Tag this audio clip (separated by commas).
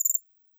Cricket, Wild animals, Insect, Animal